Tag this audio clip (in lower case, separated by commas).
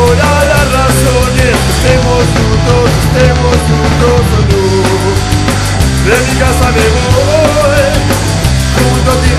music, punk rock